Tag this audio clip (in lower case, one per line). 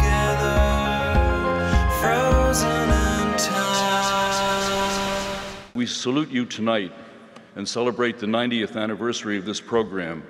music
speech